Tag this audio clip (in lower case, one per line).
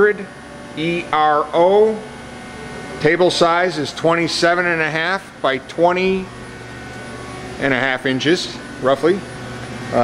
speech